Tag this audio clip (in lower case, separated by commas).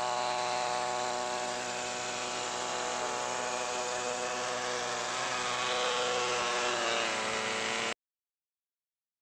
aircraft, vehicle, fixed-wing aircraft